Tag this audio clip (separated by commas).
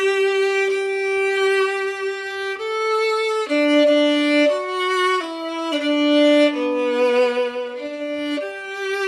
Sad music, Violin, Music, Musical instrument